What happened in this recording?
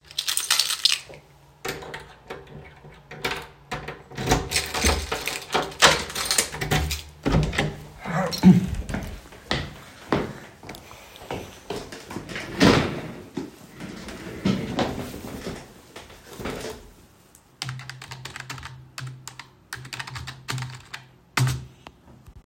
I opened and closed a drawer in the room. Then, I walked over to my desk. I sat down and began typing on my computer keyboard.